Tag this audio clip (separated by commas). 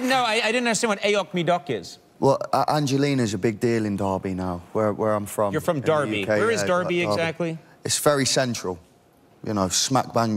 Speech